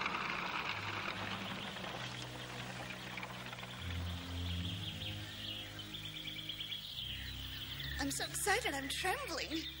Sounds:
Environmental noise, bird song

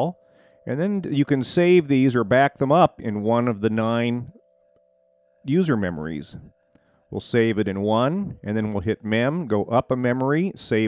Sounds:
Speech

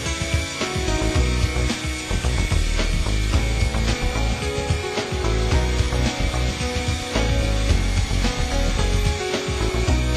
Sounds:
Aircraft, Music, Helicopter

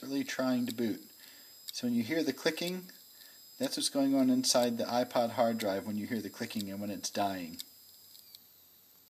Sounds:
Speech

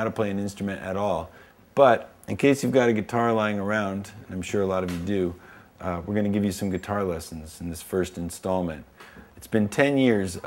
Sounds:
Speech

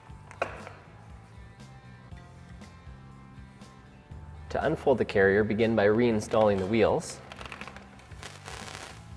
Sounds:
Music, Speech

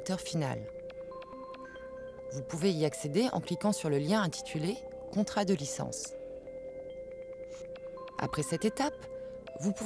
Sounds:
Speech, Music

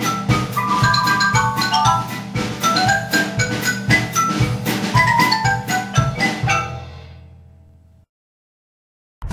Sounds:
Drum kit, Musical instrument, Music, Percussion, xylophone, Drum

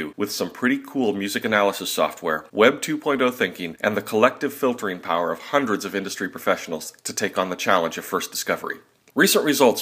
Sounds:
Speech

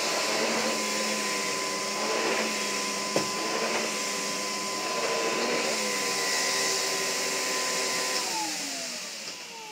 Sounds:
Vacuum cleaner

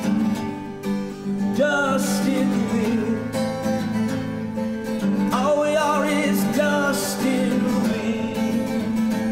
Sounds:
Music

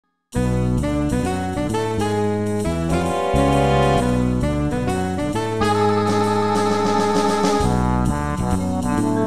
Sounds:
Music, Soundtrack music

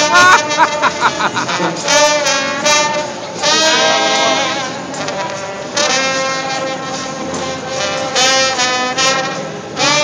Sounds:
Music

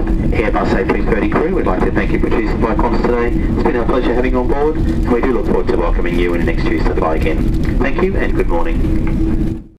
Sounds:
Speech

